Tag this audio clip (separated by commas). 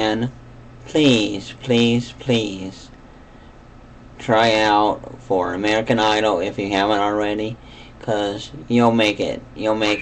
Speech